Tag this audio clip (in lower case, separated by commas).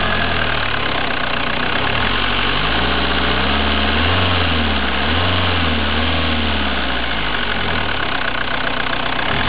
accelerating, vehicle, car